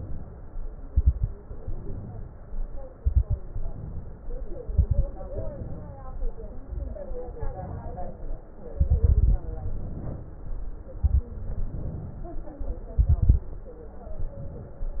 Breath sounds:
0.00-0.74 s: inhalation
0.80-1.33 s: exhalation
0.80-1.33 s: crackles
1.41-2.60 s: inhalation
2.98-3.40 s: exhalation
2.98-3.40 s: crackles
3.52-4.42 s: inhalation
4.60-5.09 s: exhalation
4.60-5.09 s: crackles
5.26-6.17 s: inhalation
6.56-7.08 s: exhalation
6.56-7.08 s: crackles
7.26-8.45 s: inhalation
7.26-8.45 s: exhalation
8.72-9.46 s: exhalation
8.72-9.46 s: crackles
9.48-10.92 s: inhalation
10.96-11.34 s: exhalation
10.96-11.34 s: crackles
11.42-12.63 s: inhalation
12.94-13.55 s: exhalation
12.94-13.55 s: crackles
14.14-15.00 s: inhalation

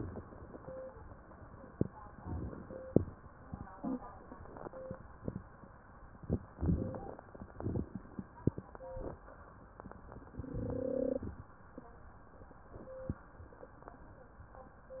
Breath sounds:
2.15-2.92 s: inhalation
2.15-2.92 s: crackles
6.46-7.24 s: inhalation
6.46-7.24 s: crackles
7.37-8.28 s: exhalation
7.37-8.28 s: crackles

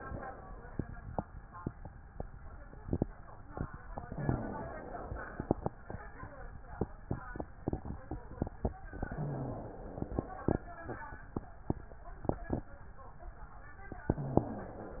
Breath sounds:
4.02-5.60 s: inhalation
8.93-10.52 s: inhalation
14.08-15.00 s: inhalation

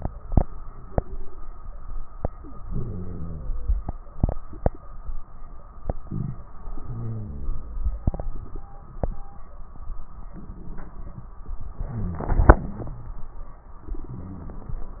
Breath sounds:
2.63-3.70 s: crackles
2.65-3.75 s: inhalation
6.66-7.73 s: crackles
6.66-7.76 s: inhalation
11.83-12.93 s: inhalation
11.83-12.93 s: crackles

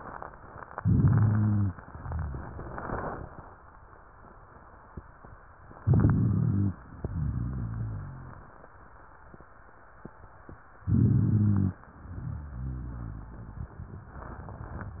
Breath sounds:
0.76-1.77 s: inhalation
0.81-1.76 s: rhonchi
1.80-3.56 s: exhalation
1.80-3.56 s: crackles
5.71-6.80 s: inhalation
5.83-6.77 s: rhonchi
6.79-8.68 s: exhalation
7.04-8.45 s: rhonchi
10.83-11.80 s: inhalation
10.83-11.75 s: rhonchi

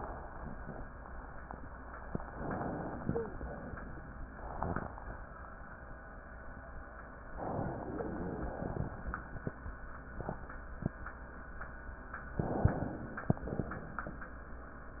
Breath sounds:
2.35-3.38 s: inhalation
2.98-3.36 s: wheeze
7.46-8.96 s: inhalation
7.74-8.50 s: wheeze
12.41-13.44 s: inhalation

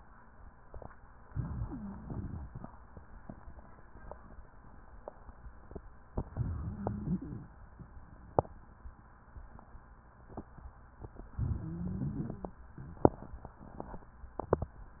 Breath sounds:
1.25-2.60 s: inhalation
1.27-2.62 s: stridor
6.17-7.52 s: inhalation
6.17-7.52 s: stridor
11.31-12.54 s: inhalation
11.31-12.54 s: stridor

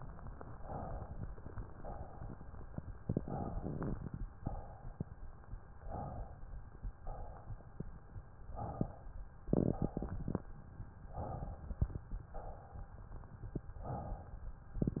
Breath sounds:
0.56-1.12 s: inhalation
1.83-2.49 s: exhalation
3.19-3.77 s: inhalation
4.41-5.10 s: exhalation
5.86-6.46 s: inhalation
7.00-7.76 s: exhalation
8.54-9.17 s: inhalation
9.51-10.16 s: exhalation
11.13-11.71 s: inhalation
12.36-12.99 s: exhalation
13.85-14.48 s: inhalation

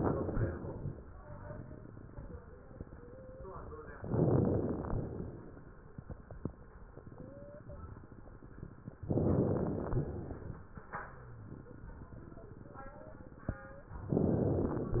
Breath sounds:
4.00-4.90 s: inhalation
4.00-4.90 s: crackles
4.93-5.79 s: exhalation
4.93-5.79 s: crackles
9.11-10.07 s: inhalation
9.11-10.07 s: crackles
10.11-10.70 s: exhalation
10.11-10.70 s: crackles
14.10-15.00 s: inhalation
14.10-15.00 s: crackles

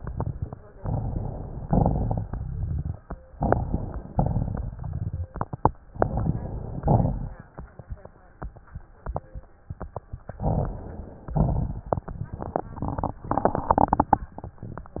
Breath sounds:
0.00-0.53 s: exhalation
0.00-0.53 s: crackles
0.74-1.64 s: inhalation
0.74-1.64 s: crackles
1.65-2.94 s: exhalation
1.65-2.94 s: crackles
3.32-4.12 s: crackles
3.35-4.12 s: inhalation
4.13-5.30 s: crackles
4.13-5.34 s: exhalation
5.89-6.83 s: inhalation
5.91-6.85 s: crackles
6.88-7.81 s: exhalation
6.88-7.81 s: crackles
10.36-11.30 s: inhalation
10.36-11.30 s: crackles
11.36-14.16 s: exhalation
11.36-14.16 s: crackles

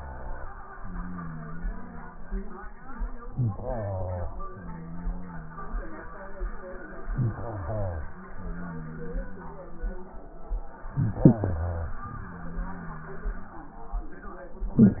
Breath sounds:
3.28-4.39 s: inhalation
4.40-6.12 s: exhalation
7.04-8.22 s: inhalation
8.20-10.13 s: exhalation
10.81-11.98 s: inhalation
11.98-14.01 s: exhalation

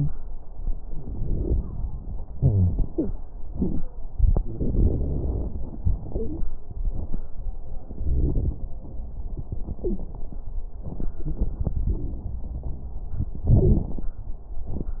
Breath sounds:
0.77-2.33 s: inhalation
0.77-2.33 s: crackles
2.34-2.77 s: wheeze
2.34-3.11 s: exhalation
2.87-3.15 s: wheeze
10.93-13.06 s: inhalation
10.93-13.06 s: crackles
13.46-14.12 s: exhalation
13.46-14.12 s: crackles

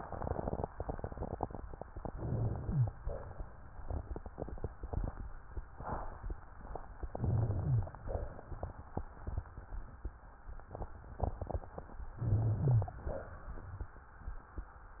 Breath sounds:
2.09-2.89 s: rhonchi
2.11-2.89 s: inhalation
2.98-3.76 s: exhalation
7.10-7.95 s: inhalation
7.10-7.95 s: rhonchi
8.06-8.63 s: exhalation
12.22-13.02 s: inhalation
12.22-13.02 s: rhonchi

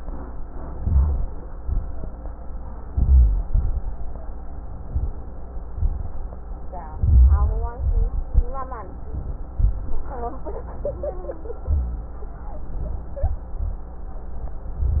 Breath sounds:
0.76-1.56 s: inhalation
0.76-1.56 s: rhonchi
1.61-2.18 s: exhalation
1.61-2.18 s: rhonchi
2.87-3.44 s: inhalation
2.87-3.44 s: rhonchi
3.45-4.02 s: exhalation
3.45-4.02 s: crackles
6.93-7.76 s: inhalation
6.93-7.76 s: rhonchi
7.78-8.52 s: exhalation
7.78-8.52 s: crackles

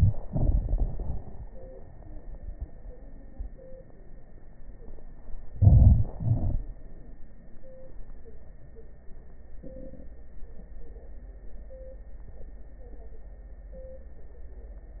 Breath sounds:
5.54-6.07 s: inhalation
6.15-6.60 s: exhalation
6.15-6.60 s: crackles

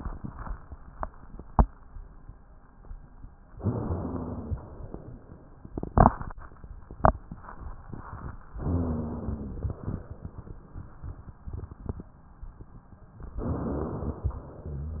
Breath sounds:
3.57-4.86 s: inhalation
3.57-4.86 s: rhonchi
4.90-5.72 s: exhalation
8.51-9.80 s: inhalation
8.51-9.80 s: rhonchi
9.80-10.62 s: exhalation
13.25-14.28 s: inhalation

